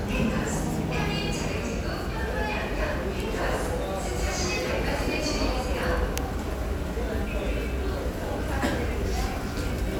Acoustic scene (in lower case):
subway station